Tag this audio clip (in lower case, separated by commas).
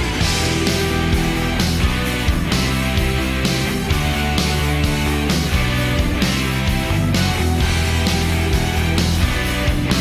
music, rock and roll